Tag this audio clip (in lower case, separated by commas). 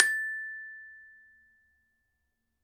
mallet percussion, musical instrument, percussion, music, glockenspiel